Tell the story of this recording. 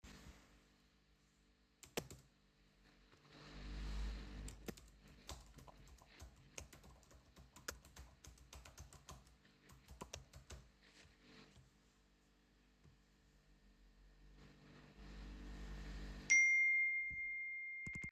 I was sitting at my desk typing on the keyboard. While typing, I received a notification on my phone. I paused briefly to check the notification before continuing.